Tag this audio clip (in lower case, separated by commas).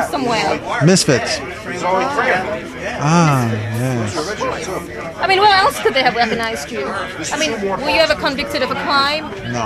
speech